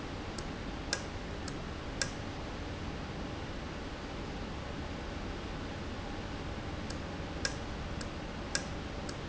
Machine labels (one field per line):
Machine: valve